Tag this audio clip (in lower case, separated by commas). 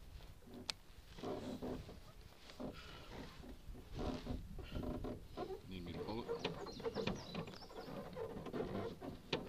speech